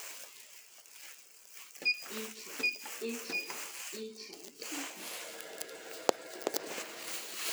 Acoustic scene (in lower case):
elevator